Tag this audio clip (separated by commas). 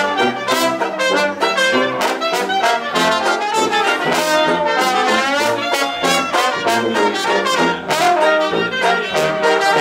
Jazz, Music